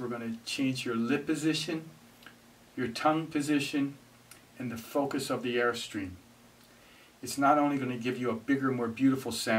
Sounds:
Speech

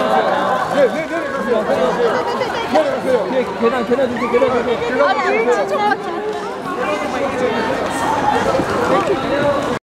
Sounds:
Speech

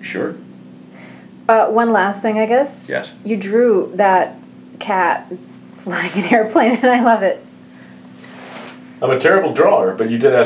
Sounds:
Speech

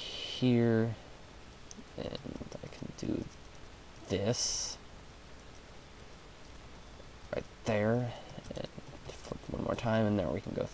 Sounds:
Speech

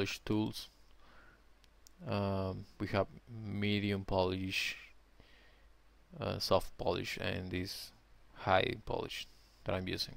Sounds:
Speech

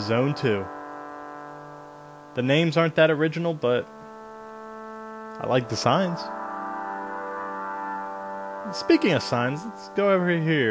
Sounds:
Speech

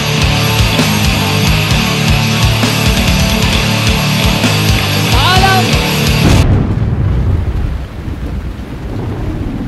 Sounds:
Music, Speech

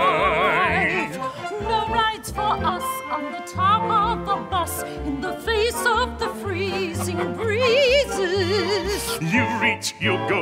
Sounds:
Funny music, Music

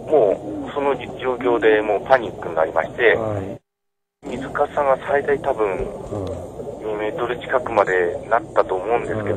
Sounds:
Speech

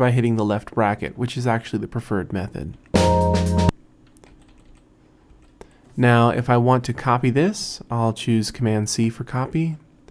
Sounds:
Music, Speech

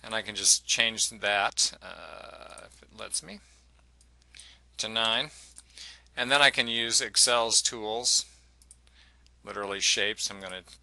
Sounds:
Speech

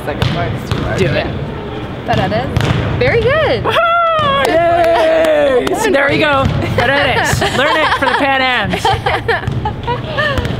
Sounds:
playing volleyball

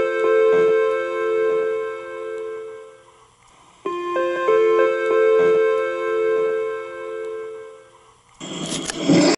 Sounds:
Music

